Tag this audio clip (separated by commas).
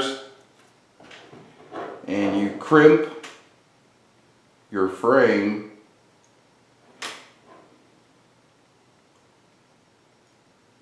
Speech, inside a small room